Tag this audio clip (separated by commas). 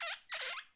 Squeak